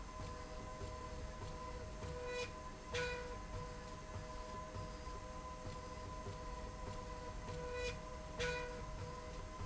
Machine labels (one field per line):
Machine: slide rail